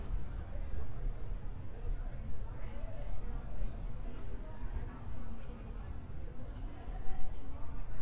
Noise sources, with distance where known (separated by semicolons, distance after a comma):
person or small group talking, far